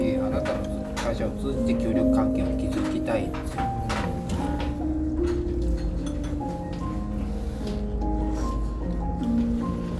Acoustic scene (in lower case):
restaurant